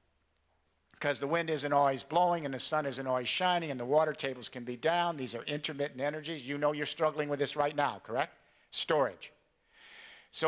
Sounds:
man speaking, speech, narration

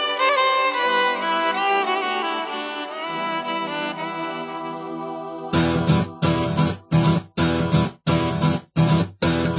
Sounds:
music, rhythm and blues

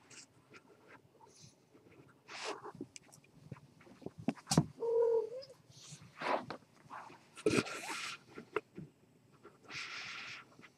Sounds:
cat

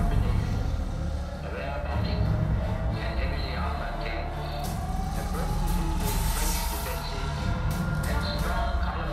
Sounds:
speech, music

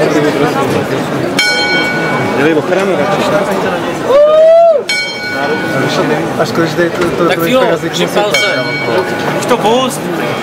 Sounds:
speech

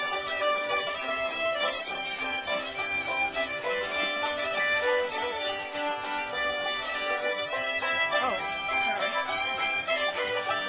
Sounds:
music, speech

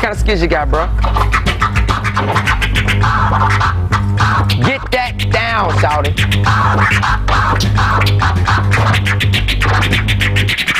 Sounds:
scratching (performance technique), music, speech, inside a small room

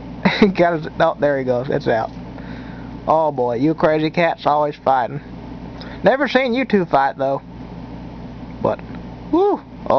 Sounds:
speech

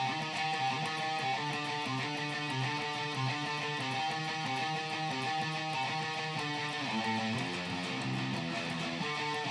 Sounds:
guitar, music, plucked string instrument, musical instrument

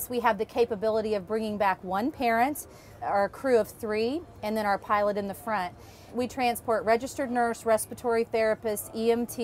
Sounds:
speech

